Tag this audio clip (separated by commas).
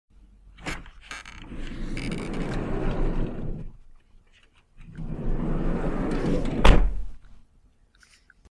Vehicle, Truck, Domestic sounds, Motor vehicle (road), Door